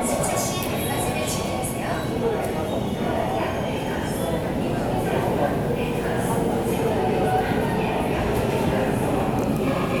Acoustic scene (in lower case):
subway station